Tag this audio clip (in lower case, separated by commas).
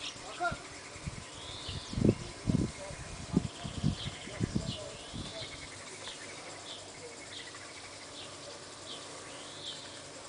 speech, animal, bird